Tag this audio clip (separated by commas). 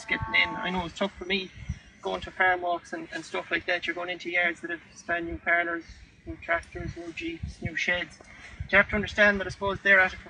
Speech